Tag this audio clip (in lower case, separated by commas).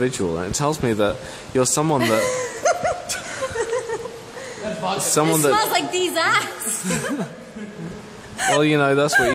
speech